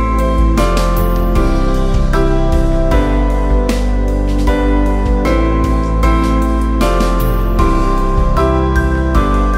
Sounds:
Music

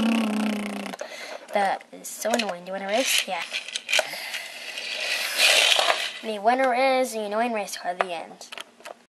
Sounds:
Speech

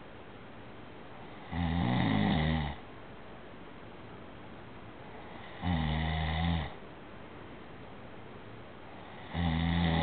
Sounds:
Snoring

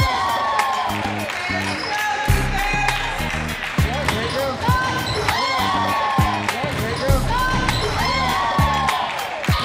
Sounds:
Music, Speech

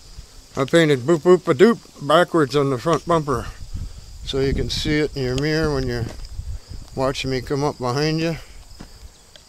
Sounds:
Speech

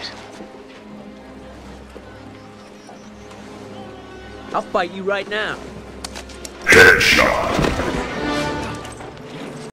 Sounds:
Speech, Music

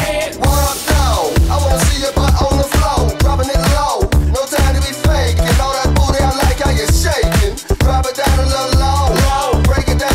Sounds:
Music, Disco, Dance music

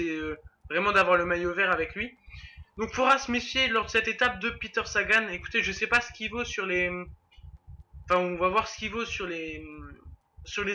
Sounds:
Speech

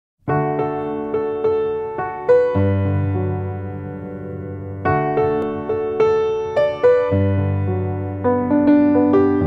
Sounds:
Music, Electric piano

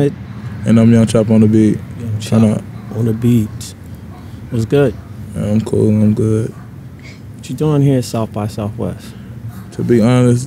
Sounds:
Speech

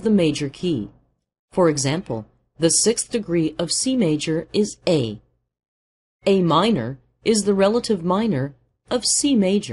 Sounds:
Speech

